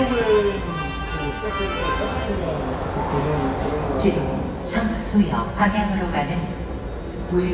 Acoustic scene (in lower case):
subway station